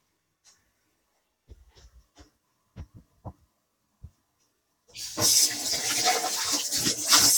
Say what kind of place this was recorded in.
kitchen